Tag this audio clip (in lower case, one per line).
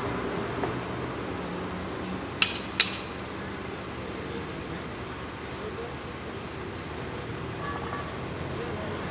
speech
medium engine (mid frequency)
car
vehicle
truck